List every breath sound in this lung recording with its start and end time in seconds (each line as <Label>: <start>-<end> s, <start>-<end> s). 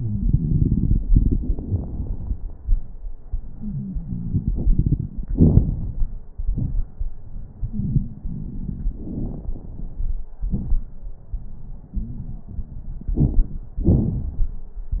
Inhalation: 3.53-5.32 s, 7.61-10.43 s, 13.14-13.68 s
Exhalation: 5.30-6.16 s, 10.44-11.21 s, 13.80-15.00 s
Wheeze: 3.53-4.51 s, 11.96-12.35 s
Crackles: 5.30-6.16 s, 7.59-10.41 s, 10.44-11.21 s, 13.14-13.68 s, 13.80-15.00 s